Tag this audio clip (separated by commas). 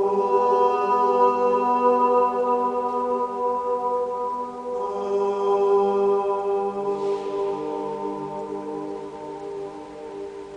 Music, Mantra